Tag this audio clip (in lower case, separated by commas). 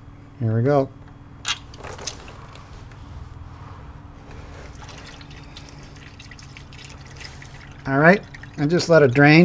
inside a large room or hall, speech